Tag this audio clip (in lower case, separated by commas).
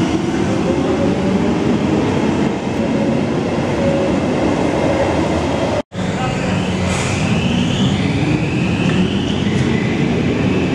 subway